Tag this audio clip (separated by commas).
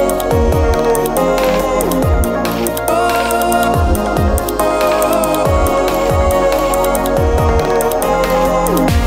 Electronic music, Dubstep, Music